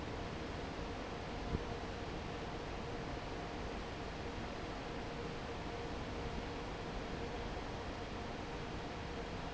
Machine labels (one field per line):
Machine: fan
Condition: normal